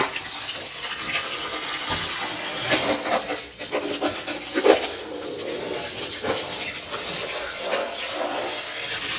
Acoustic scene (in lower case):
kitchen